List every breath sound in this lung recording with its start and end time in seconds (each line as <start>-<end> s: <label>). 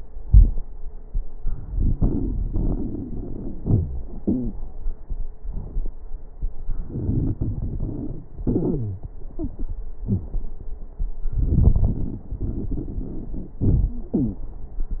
1.43-2.43 s: inhalation
1.43-2.43 s: crackles
2.52-3.54 s: exhalation
2.52-3.54 s: crackles
3.58-4.10 s: wheeze
4.23-4.58 s: wheeze
6.79-8.29 s: inhalation
6.79-8.29 s: crackles
8.42-9.06 s: exhalation
8.42-9.06 s: wheeze
11.31-12.26 s: inhalation
11.31-12.26 s: crackles
12.36-13.57 s: exhalation
12.36-13.57 s: crackles
13.63-13.98 s: inhalation
13.63-13.98 s: crackles
13.95-14.49 s: wheeze
14.13-14.49 s: exhalation